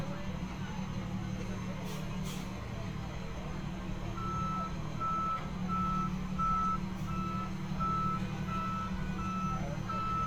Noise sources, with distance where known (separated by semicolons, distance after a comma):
reverse beeper, near